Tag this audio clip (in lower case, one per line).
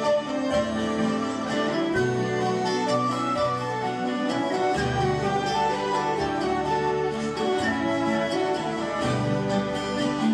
music
harp